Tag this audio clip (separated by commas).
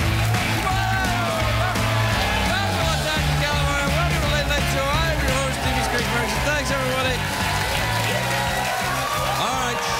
Speech, Music, Narration